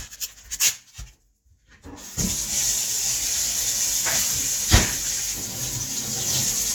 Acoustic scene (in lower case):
kitchen